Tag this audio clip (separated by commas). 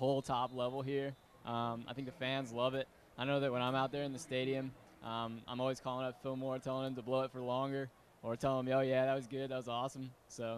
Speech